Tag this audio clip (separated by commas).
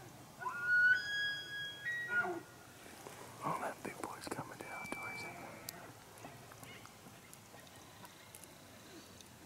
elk bugling